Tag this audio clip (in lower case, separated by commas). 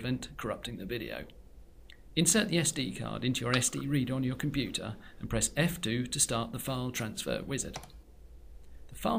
speech